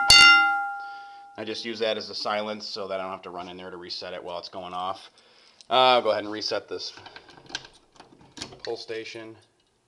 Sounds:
speech

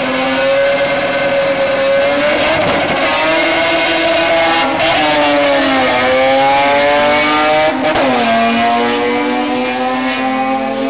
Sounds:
vehicle
car
motor vehicle (road)

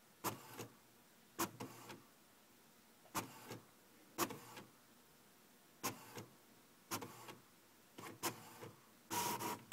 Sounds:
printer

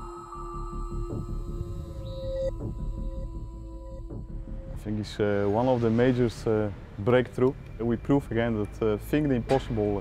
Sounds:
music
speech

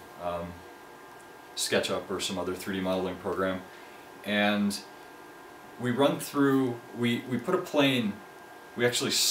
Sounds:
printer
speech

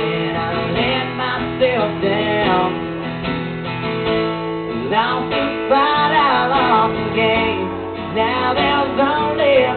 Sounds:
male singing
music

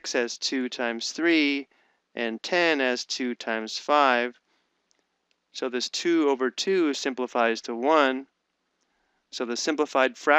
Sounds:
speech

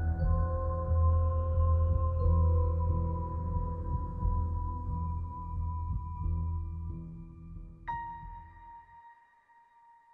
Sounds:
music

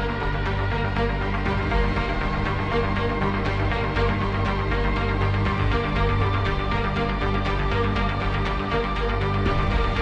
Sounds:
exciting music
music

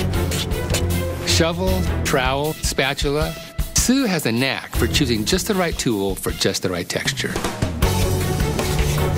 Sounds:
music
speech

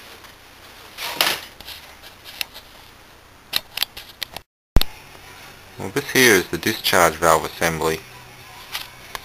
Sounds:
speech

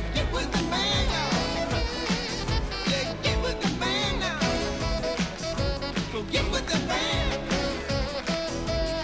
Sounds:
music

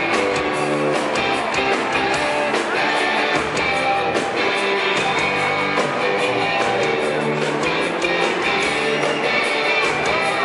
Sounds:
music

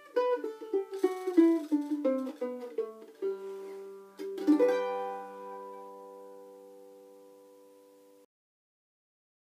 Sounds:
playing mandolin

